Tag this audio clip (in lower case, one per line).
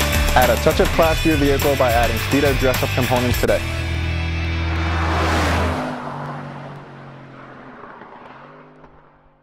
speech
vehicle
music
car